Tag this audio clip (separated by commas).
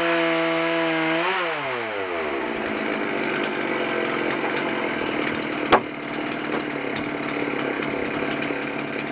Sawing, Wood